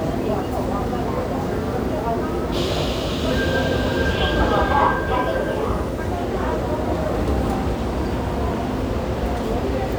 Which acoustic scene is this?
subway station